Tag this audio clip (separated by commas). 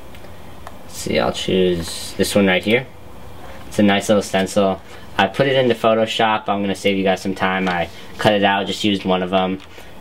Speech